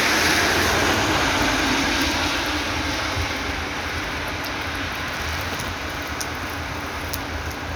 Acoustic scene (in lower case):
street